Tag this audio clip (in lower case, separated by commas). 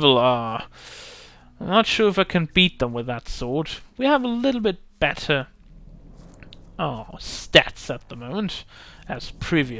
speech